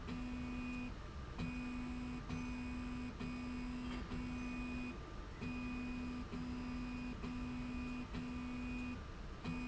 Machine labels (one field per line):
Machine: slide rail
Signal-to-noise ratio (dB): 6 dB